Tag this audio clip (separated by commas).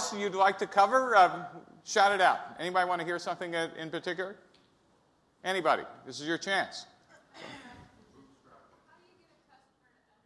Speech